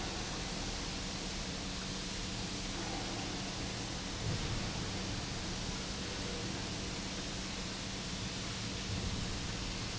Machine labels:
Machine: pump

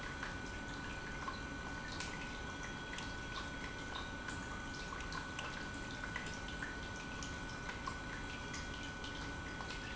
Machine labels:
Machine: pump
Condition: normal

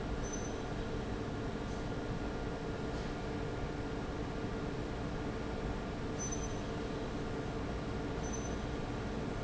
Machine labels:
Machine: fan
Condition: abnormal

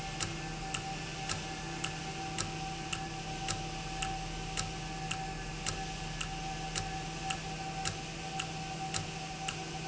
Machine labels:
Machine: valve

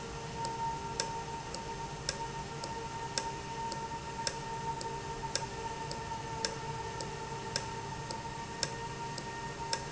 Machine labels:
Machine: valve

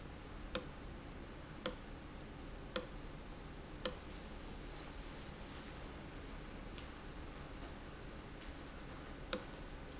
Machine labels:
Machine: valve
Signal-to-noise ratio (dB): 6 dB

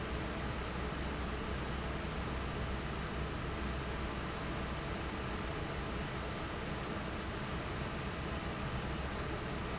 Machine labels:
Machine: fan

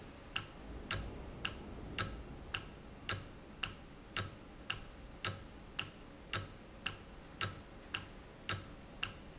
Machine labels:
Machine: valve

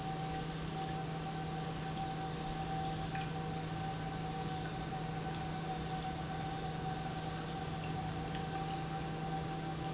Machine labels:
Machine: pump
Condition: normal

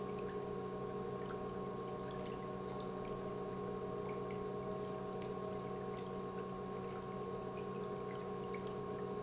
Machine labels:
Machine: pump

